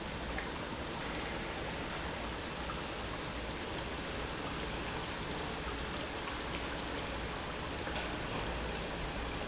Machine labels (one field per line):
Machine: pump